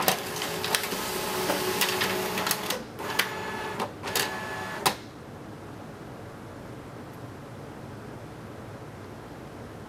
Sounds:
Printer, printer printing

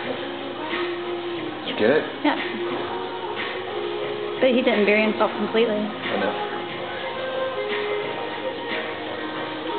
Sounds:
Music, Speech

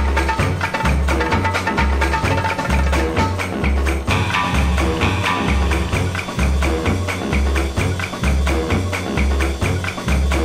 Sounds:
Music

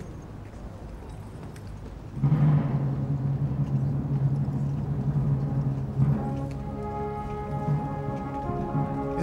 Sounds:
Music, Speech

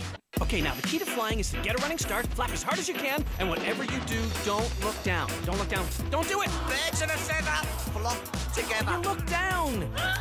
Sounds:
Speech, Music

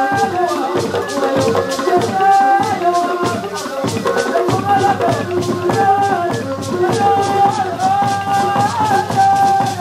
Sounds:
Music, Dance music

